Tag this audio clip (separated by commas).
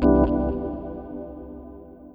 Keyboard (musical), Music, Organ, Musical instrument